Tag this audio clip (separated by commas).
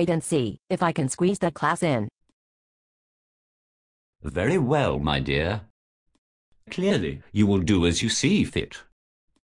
inside a large room or hall, Speech